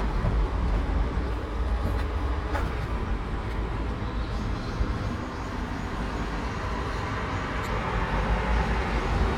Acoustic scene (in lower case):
park